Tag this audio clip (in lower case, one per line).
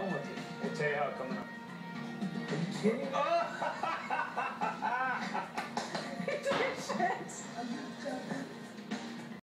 music
speech